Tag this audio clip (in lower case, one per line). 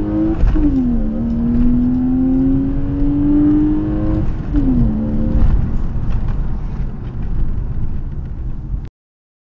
rustle